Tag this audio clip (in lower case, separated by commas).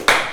clapping, hands